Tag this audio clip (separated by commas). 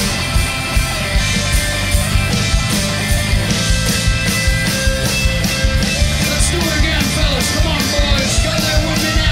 Roll, Rock and roll, Musical instrument, Plucked string instrument, Speech, Guitar, Music